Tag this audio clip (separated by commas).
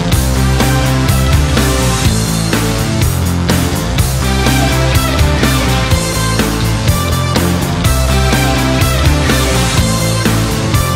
electric shaver